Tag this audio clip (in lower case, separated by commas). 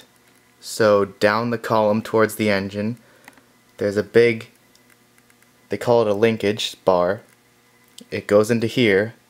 speech